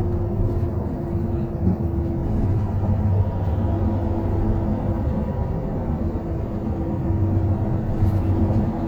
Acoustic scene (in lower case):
bus